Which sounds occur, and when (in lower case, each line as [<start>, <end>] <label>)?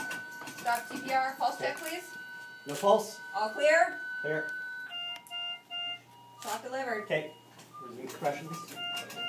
[0.00, 0.16] generic impact sounds
[0.00, 4.89] sine wave
[0.00, 9.25] mechanisms
[0.42, 2.11] generic impact sounds
[0.61, 2.01] woman speaking
[0.63, 8.67] conversation
[2.65, 3.19] man speaking
[3.24, 3.94] woman speaking
[4.21, 4.54] man speaking
[4.39, 4.54] generic impact sounds
[4.87, 5.14] bleep
[5.09, 5.25] generic impact sounds
[5.29, 5.58] bleep
[5.69, 5.99] bleep
[6.11, 6.60] bleep
[6.40, 7.06] woman speaking
[6.84, 7.04] bleep
[7.06, 7.37] man speaking
[7.20, 7.56] bleep
[7.70, 7.90] bleep
[7.74, 8.60] man speaking
[8.04, 8.78] generic impact sounds
[8.17, 9.01] bleep
[8.90, 9.18] generic impact sounds
[9.16, 9.25] bleep